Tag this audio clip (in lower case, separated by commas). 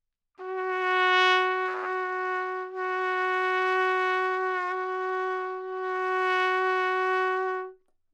brass instrument, musical instrument, trumpet, music